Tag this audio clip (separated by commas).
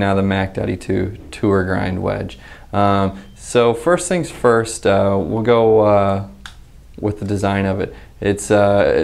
Speech